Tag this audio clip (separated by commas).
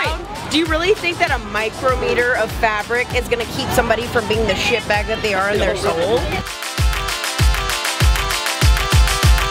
Music, Speech